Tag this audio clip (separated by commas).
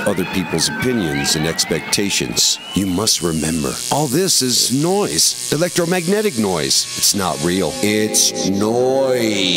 Music, Speech, Musical instrument